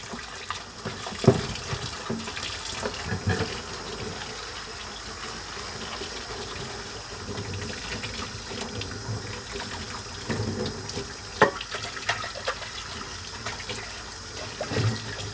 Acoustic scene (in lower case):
kitchen